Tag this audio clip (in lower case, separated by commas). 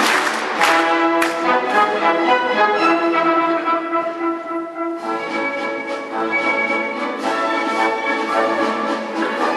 music, orchestra